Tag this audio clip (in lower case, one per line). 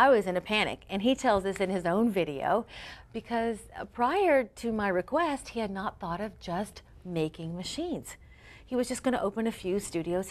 inside a large room or hall
speech